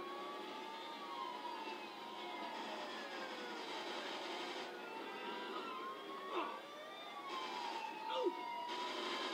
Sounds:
Vehicle

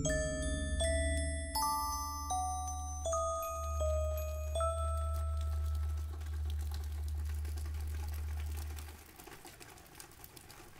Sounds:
Music, Soundtrack music

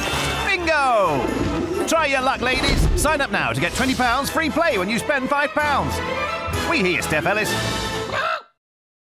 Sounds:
Speech, Music

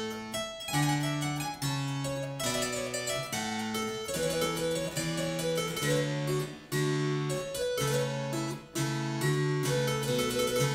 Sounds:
playing harpsichord, Music, Harpsichord

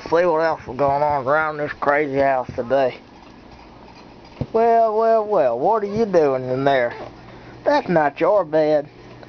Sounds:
Speech

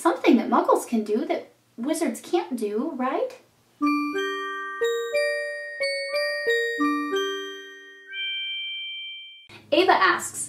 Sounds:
Music, inside a small room, Speech

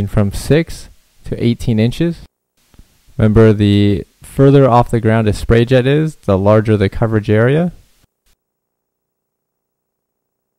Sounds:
Speech

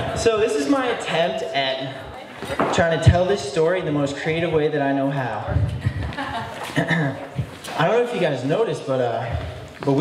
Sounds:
Male speech, Narration, Speech

